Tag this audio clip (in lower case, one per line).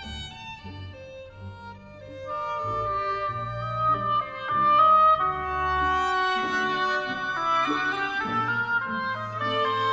playing oboe